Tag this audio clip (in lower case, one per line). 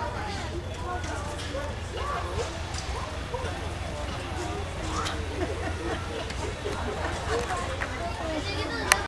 speech